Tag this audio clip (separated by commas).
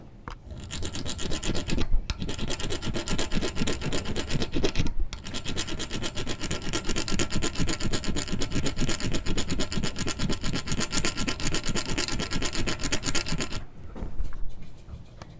Tools